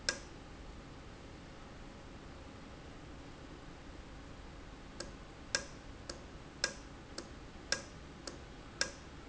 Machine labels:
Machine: valve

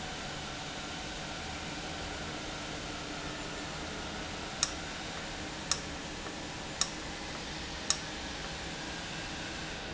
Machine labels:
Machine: valve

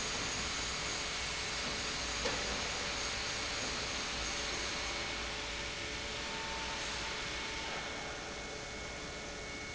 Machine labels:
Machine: pump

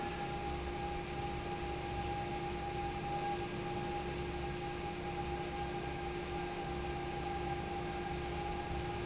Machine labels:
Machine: fan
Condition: normal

